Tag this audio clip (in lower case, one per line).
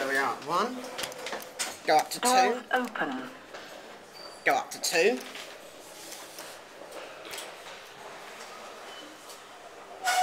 speech